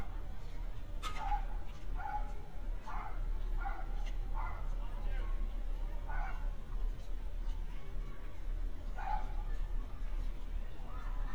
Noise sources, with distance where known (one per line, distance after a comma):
dog barking or whining, far